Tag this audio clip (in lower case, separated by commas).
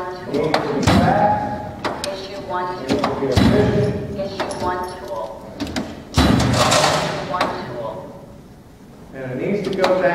thud, speech